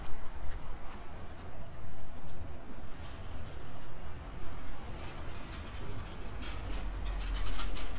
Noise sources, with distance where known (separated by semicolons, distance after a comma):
engine of unclear size, near